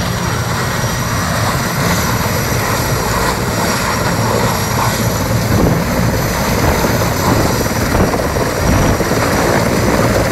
An aircraft makes loud noise